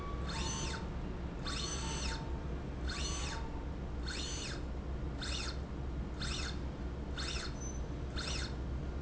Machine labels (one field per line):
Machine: slide rail